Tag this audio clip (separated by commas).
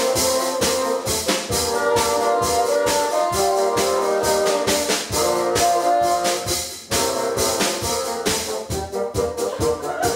playing bassoon